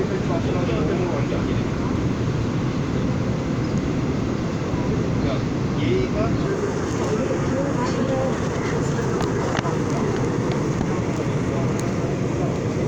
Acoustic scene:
subway train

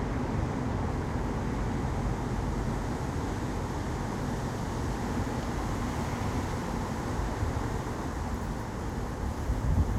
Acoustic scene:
residential area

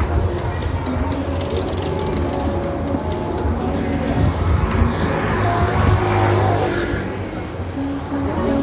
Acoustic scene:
street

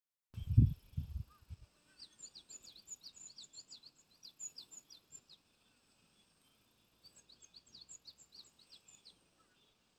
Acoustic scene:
park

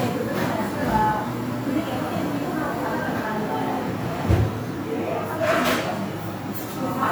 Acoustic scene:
crowded indoor space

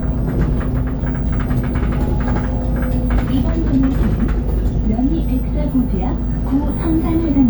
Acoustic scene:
bus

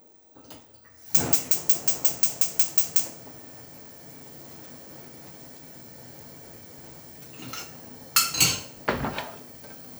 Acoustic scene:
kitchen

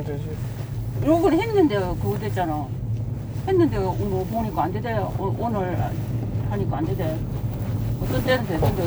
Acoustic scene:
car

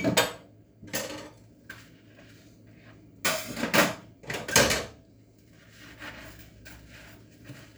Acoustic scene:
kitchen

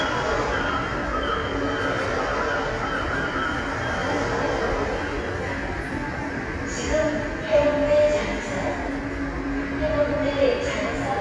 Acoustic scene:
subway station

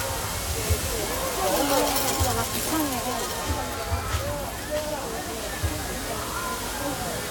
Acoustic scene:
park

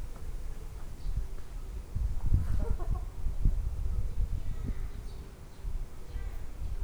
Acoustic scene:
park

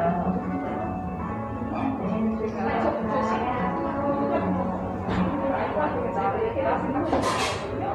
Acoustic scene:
cafe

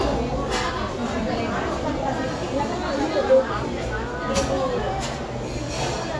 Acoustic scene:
crowded indoor space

